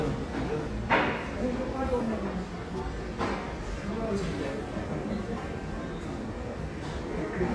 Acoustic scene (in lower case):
crowded indoor space